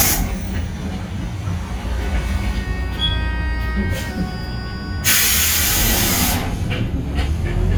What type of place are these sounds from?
bus